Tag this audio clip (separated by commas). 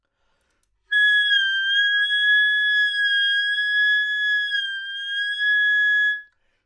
Music, Musical instrument, woodwind instrument